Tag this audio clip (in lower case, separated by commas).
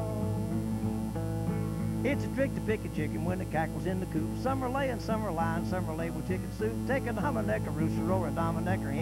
music, country